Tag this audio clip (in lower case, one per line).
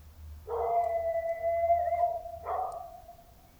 pets
dog
animal